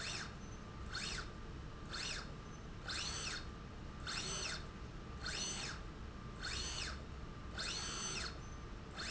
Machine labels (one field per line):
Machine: slide rail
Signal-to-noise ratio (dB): 6 dB